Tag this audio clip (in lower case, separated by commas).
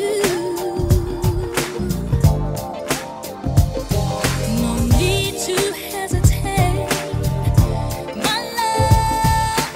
music, rhythm and blues